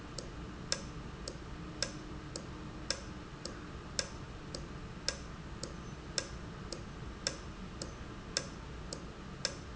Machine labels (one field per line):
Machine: valve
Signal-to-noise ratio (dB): 0 dB